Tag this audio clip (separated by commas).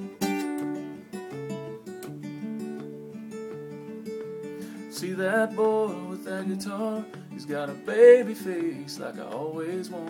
Plucked string instrument, Guitar, Acoustic guitar, Musical instrument, Strum, Music